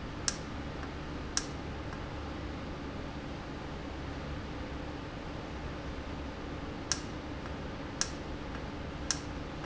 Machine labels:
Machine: valve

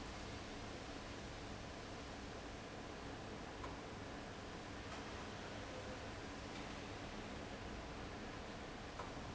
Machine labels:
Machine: fan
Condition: abnormal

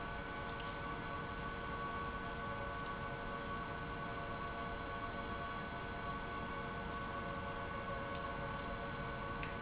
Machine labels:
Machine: pump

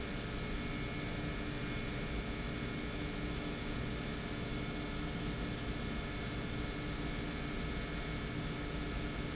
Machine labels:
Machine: pump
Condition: normal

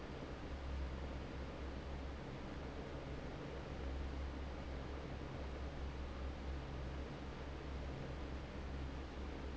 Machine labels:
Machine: fan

